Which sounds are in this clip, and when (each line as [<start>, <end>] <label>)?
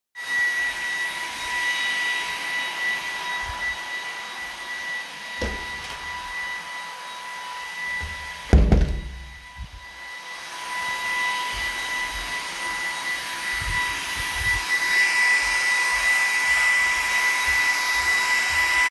[0.06, 18.90] vacuum cleaner
[5.18, 5.83] door
[8.28, 9.14] door